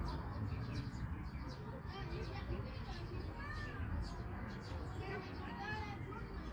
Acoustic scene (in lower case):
park